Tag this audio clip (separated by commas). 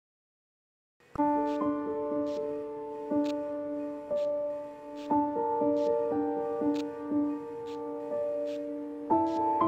Tender music, Music